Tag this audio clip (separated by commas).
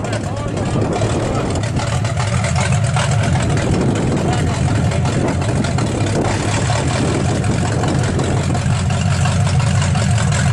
Vehicle, Truck